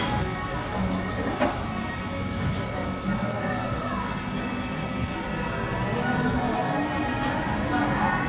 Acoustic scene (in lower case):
cafe